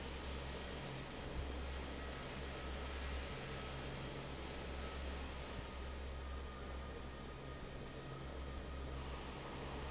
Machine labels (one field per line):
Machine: fan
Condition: normal